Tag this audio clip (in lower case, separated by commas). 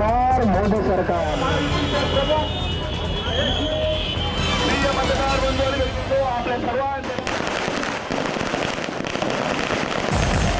firecracker, outside, urban or man-made, fireworks, music, speech